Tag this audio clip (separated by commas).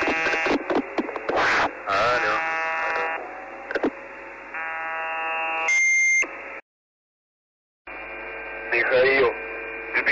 Speech, Buzzer